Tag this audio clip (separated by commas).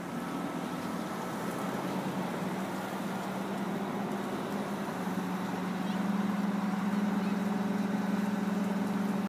Vehicle